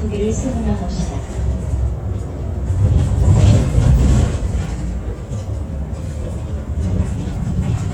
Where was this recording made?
on a bus